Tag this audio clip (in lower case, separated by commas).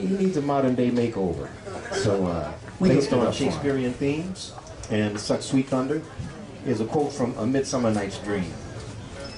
speech